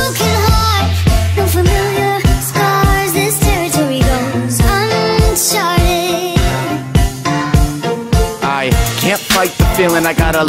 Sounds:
music

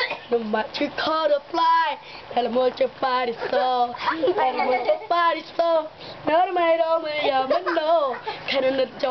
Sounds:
speech

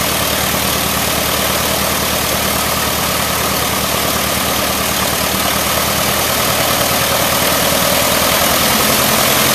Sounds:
aircraft
engine
vehicle
propeller

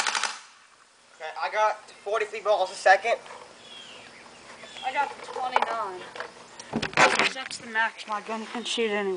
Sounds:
outside, rural or natural
speech

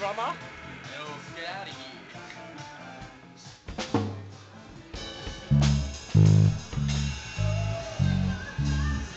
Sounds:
plucked string instrument
speech
strum
music
musical instrument
guitar
bass guitar

